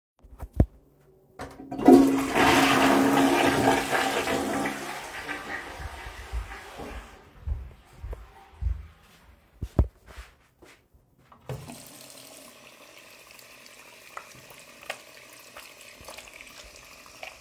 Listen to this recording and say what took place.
Flushing toilet, walking to the faucet and turned on the water to wash my hands